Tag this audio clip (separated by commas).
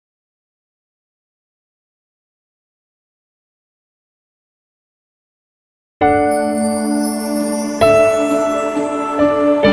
New-age music, Music